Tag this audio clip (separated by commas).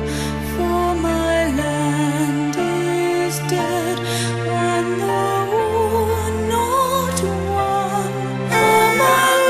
Music